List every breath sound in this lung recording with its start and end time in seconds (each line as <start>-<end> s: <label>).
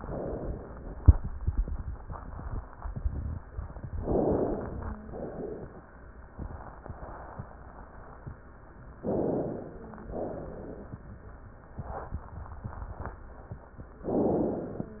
3.98-4.95 s: inhalation
4.63-5.36 s: wheeze
5.10-5.84 s: exhalation
8.99-9.96 s: inhalation
9.56-10.14 s: wheeze
10.09-11.02 s: exhalation
14.08-15.00 s: inhalation